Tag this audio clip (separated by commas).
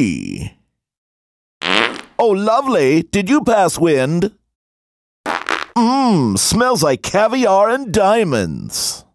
Speech, Fart